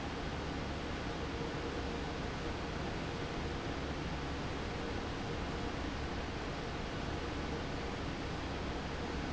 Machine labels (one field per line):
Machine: fan